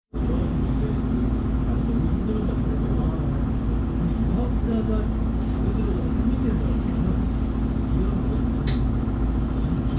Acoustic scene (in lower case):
bus